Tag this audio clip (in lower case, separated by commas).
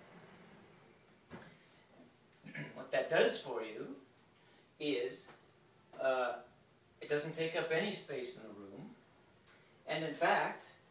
sliding door, speech